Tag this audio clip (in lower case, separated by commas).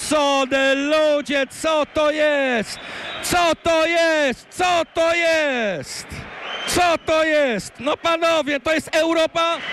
speech